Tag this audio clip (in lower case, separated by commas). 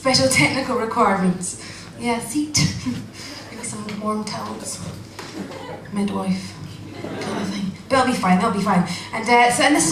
speech, chuckle